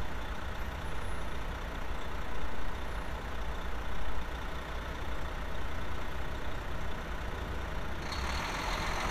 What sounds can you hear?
large-sounding engine